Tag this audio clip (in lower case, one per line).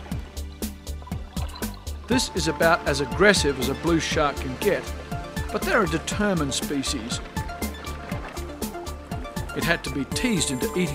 speech
music